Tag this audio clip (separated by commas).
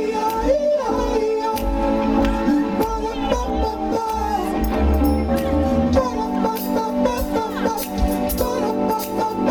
Music